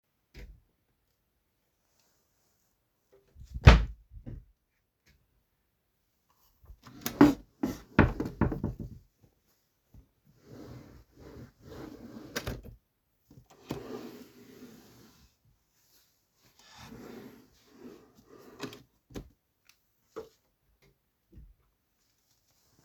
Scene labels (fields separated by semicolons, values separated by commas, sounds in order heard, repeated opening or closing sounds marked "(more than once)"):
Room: bedroom; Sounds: wardrobe or drawer (more than once)